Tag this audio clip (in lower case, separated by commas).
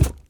thump